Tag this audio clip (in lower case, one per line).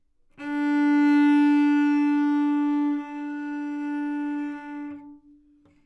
music
bowed string instrument
musical instrument